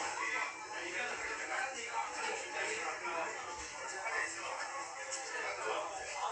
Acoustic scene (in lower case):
restaurant